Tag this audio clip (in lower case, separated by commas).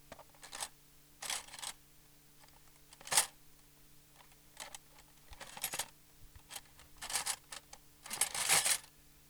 domestic sounds, cutlery